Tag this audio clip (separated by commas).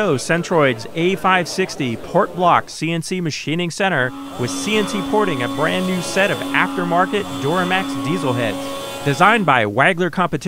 Speech